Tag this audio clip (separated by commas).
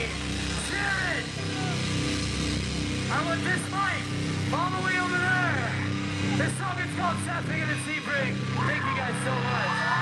Speech, Music